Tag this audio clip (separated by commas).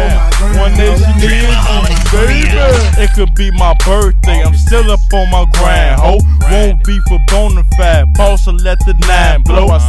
Music